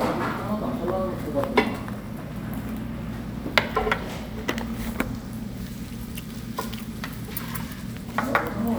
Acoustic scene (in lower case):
restaurant